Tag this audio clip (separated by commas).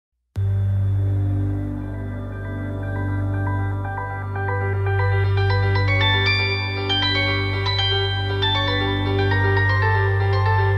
Music